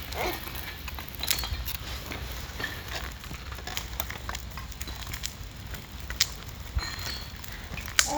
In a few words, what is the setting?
park